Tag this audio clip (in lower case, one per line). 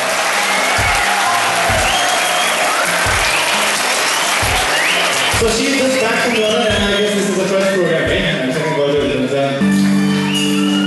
speech
music